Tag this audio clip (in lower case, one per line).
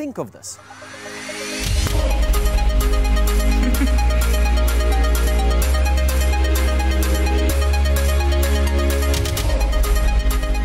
music
speech